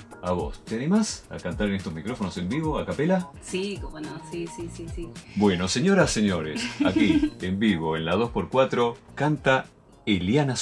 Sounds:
music, speech

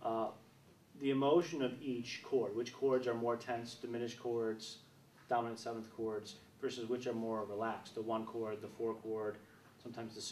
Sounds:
speech

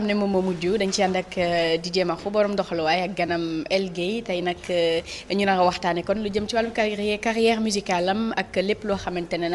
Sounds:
speech

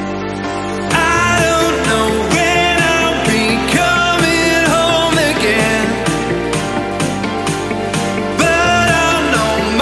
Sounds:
music

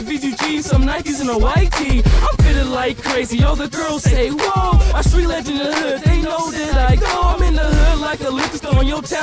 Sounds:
music

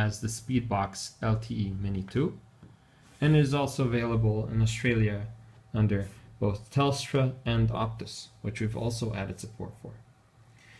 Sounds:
speech

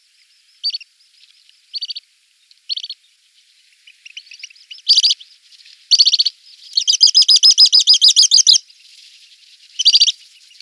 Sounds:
bird song, bird, tweet, bird chirping

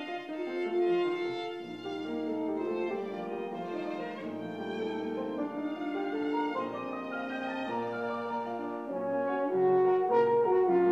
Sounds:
brass instrument, french horn, musical instrument, violin, playing french horn, music

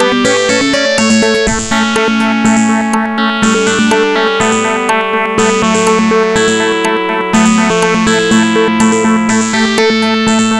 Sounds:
theme music, music

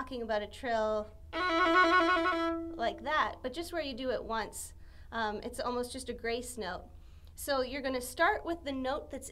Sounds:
violin, music, speech, musical instrument

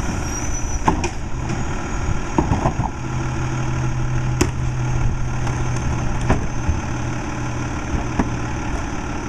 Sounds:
vehicle, speech

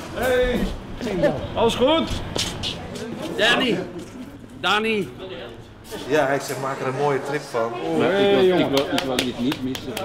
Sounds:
speech

